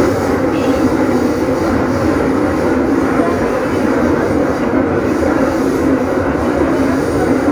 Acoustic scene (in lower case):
subway train